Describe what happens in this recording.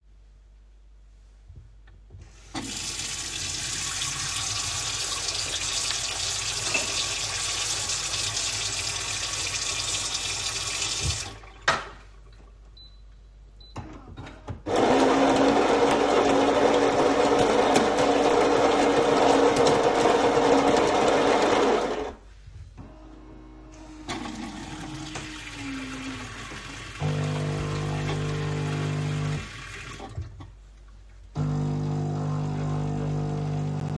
I started to run water at the kitchen sink. Then I made a coffee using the coffee machine. While doing so I accidentally dropped something on the counter.